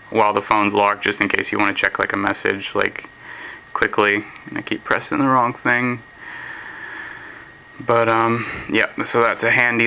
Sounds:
speech

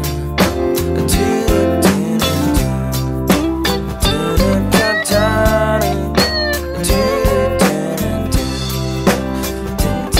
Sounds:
music, independent music

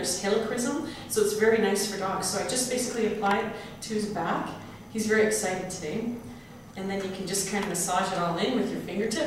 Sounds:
speech

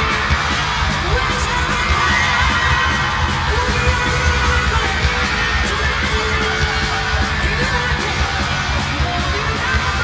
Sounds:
shout, music

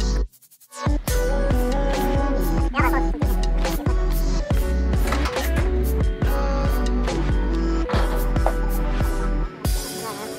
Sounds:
music

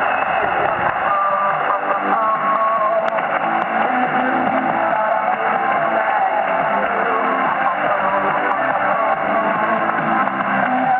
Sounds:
radio

